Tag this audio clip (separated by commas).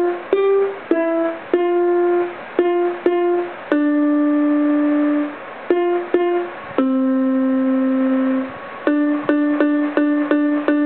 Harpsichord, Music